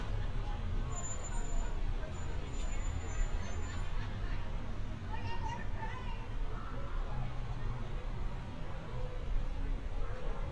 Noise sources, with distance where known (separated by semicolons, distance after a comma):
person or small group talking, far